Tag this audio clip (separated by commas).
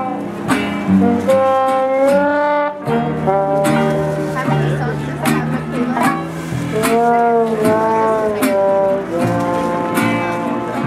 Music, Speech